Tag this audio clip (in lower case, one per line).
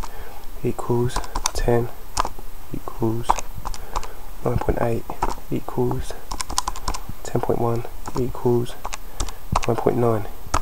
typing